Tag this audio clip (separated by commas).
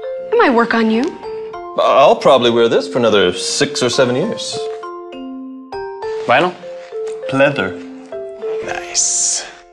Speech, Music